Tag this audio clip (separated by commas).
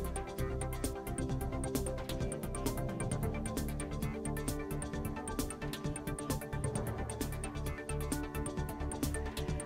Music